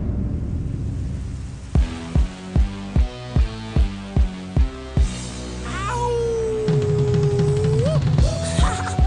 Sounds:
music
rain on surface

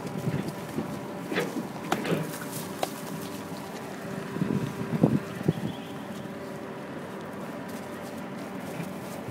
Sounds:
vehicle

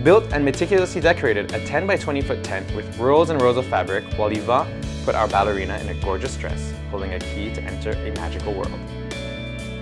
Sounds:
music
speech

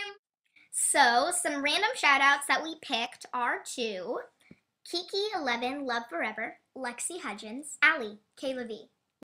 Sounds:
speech

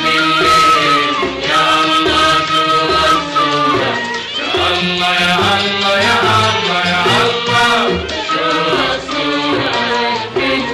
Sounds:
music

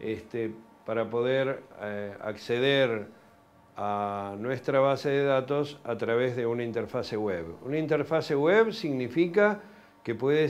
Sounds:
speech

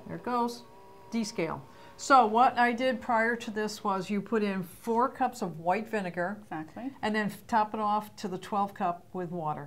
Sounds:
speech

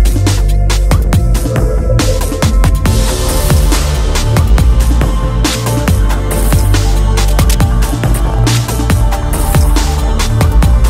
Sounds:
drum and bass
music

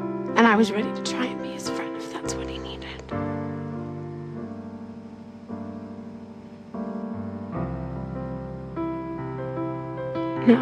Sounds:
music

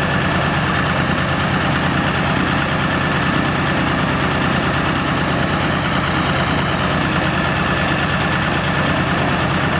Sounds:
vehicle
heavy engine (low frequency)
accelerating

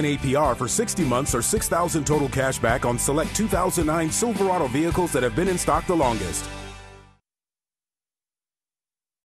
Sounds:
music
speech

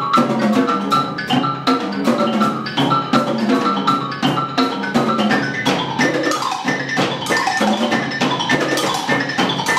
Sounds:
percussion
playing marimba
music
marimba

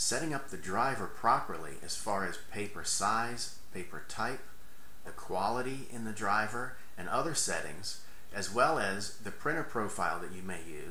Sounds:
speech

